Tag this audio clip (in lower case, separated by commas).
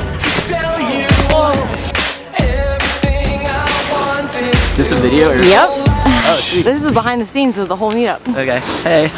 music, speech, footsteps